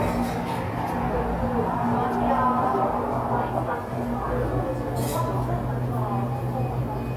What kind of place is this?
cafe